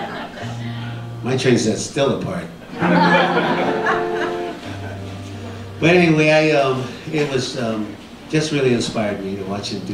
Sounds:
music, speech

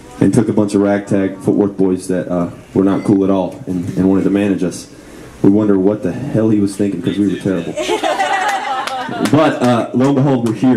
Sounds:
speech

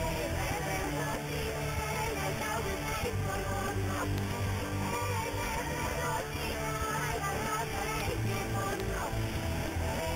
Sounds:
music

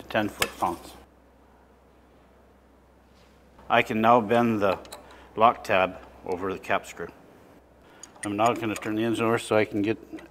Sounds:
speech

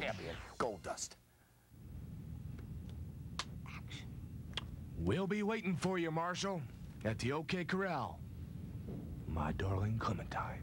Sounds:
music, speech

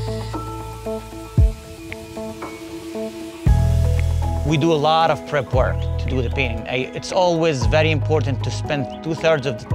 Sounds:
music, speech

